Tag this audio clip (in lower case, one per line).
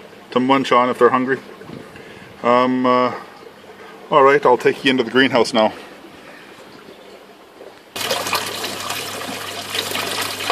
pump (liquid)
water